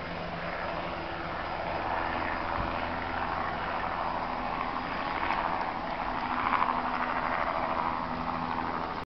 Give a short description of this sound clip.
A helicopter in the sky